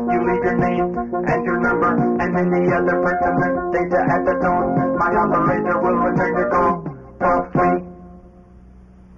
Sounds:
music

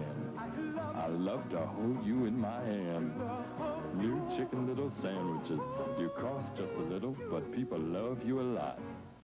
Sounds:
music, speech

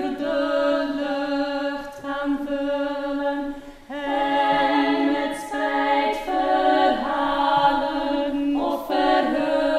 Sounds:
a capella

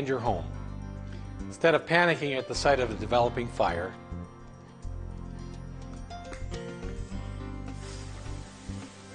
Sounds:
music, speech, spray

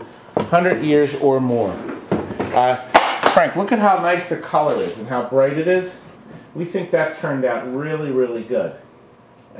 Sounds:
inside a small room, speech

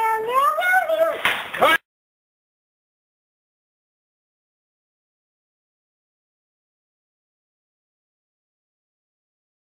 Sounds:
speech

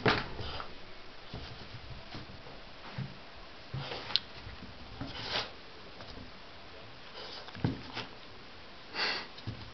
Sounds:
domestic animals, animal

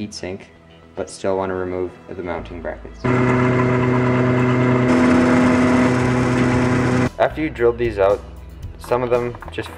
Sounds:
music, speech

